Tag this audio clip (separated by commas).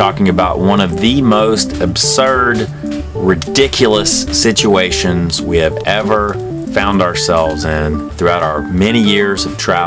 Music, Speech